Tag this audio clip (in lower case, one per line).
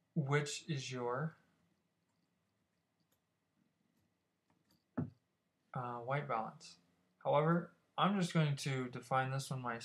speech